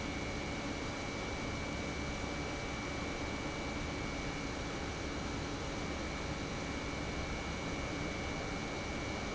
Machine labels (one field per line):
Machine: pump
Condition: normal